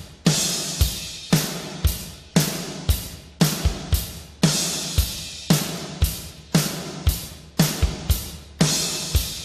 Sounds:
music

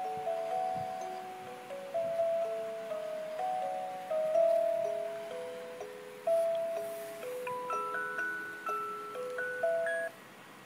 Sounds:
music

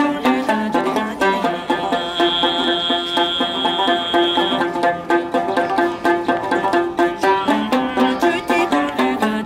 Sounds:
music

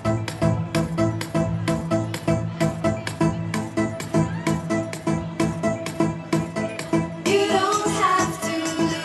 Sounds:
music

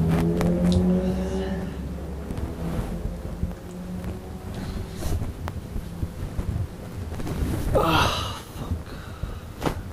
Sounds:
speech

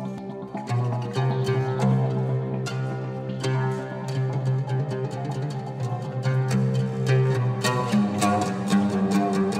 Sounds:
music

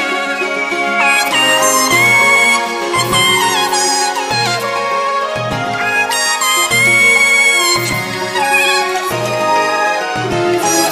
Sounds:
music

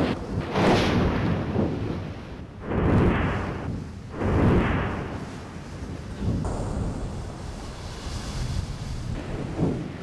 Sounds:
volcano explosion

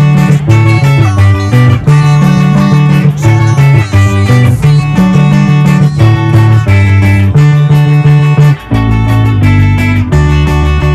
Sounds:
musical instrument, guitar, bass guitar, music, plucked string instrument, strum

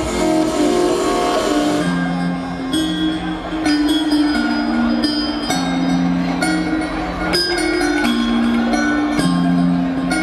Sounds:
music, happy music, jazz

